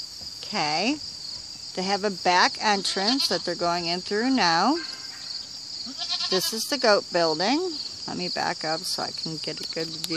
The person was talking and the sheep bleat